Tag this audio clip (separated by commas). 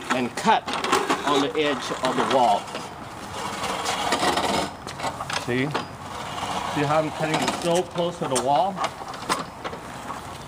Speech